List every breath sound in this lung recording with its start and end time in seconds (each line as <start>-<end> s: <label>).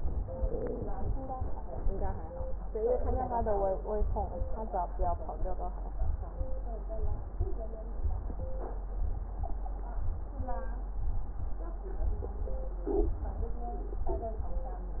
No breath sounds were labelled in this clip.